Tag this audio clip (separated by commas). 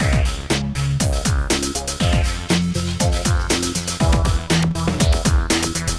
Music, Percussion, Musical instrument, Drum kit